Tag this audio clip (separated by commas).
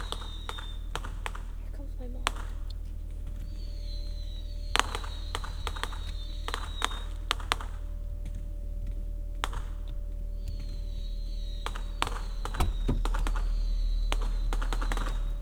Fireworks, Explosion